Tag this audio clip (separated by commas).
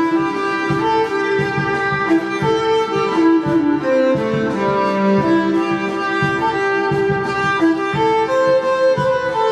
Music